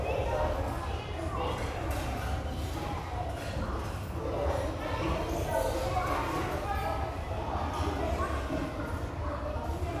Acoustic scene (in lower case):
restaurant